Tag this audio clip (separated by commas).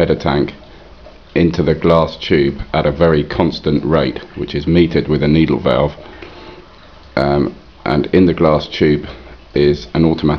Speech